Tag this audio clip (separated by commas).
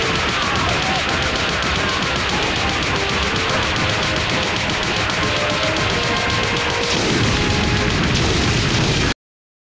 Music